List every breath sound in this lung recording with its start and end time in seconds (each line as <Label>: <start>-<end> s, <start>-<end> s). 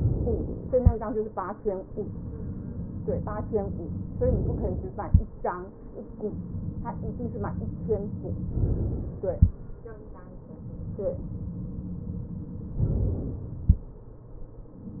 Inhalation: 12.74-13.68 s